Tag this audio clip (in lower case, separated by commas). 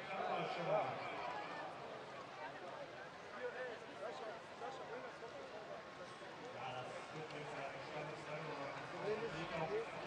speech